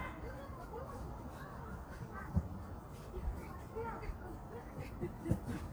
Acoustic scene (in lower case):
park